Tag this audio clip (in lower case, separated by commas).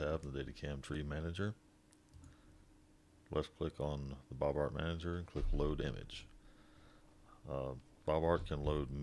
speech